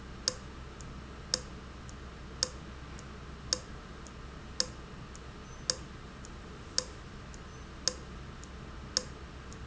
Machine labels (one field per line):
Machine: valve